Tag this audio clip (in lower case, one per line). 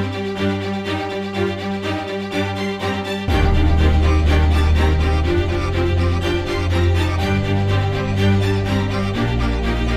music